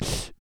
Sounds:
breathing, respiratory sounds

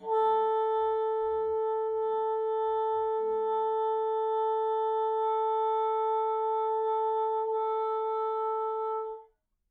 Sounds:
woodwind instrument, music, musical instrument

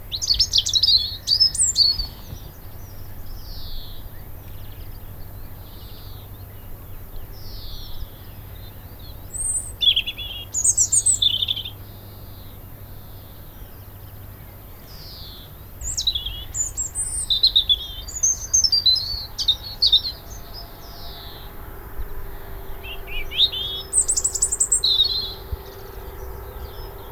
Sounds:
bird, bird call, animal, wild animals

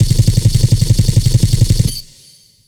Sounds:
gunshot, explosion

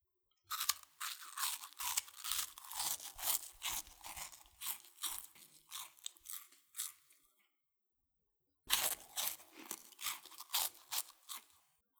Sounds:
mastication

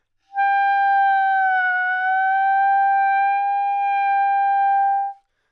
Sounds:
woodwind instrument, music, musical instrument

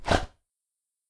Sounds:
dog, animal, domestic animals

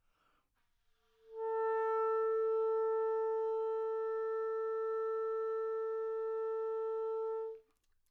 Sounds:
woodwind instrument, musical instrument, music

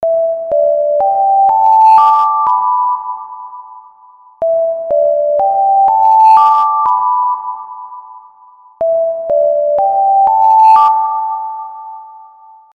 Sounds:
alarm

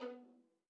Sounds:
bowed string instrument, music, musical instrument

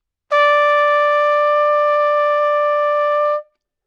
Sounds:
music, musical instrument, trumpet, brass instrument

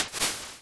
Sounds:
liquid, splatter

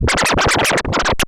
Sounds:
scratching (performance technique), music, musical instrument

